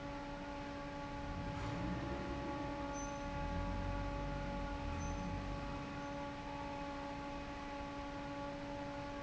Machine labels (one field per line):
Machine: fan